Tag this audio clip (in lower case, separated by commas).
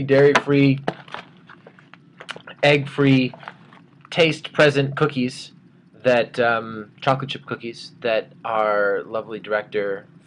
speech